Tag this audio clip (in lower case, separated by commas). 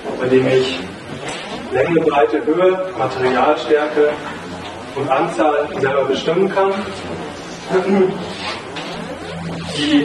speech